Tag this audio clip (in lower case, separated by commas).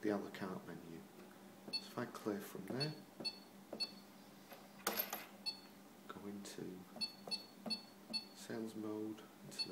speech